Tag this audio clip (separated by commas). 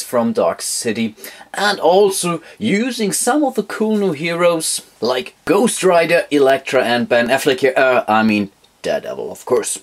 inside a small room, Speech